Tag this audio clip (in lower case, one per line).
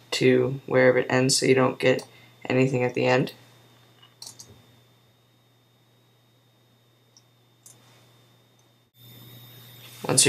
clicking
speech